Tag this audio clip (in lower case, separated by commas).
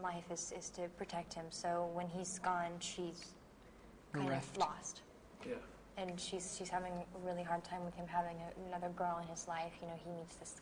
inside a large room or hall, speech